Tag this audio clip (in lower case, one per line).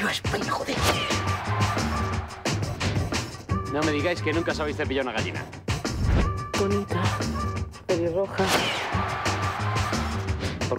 speech
music